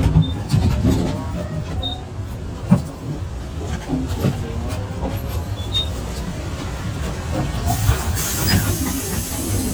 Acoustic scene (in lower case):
bus